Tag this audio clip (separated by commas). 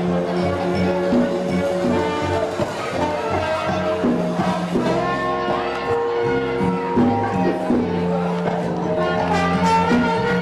Speech, Music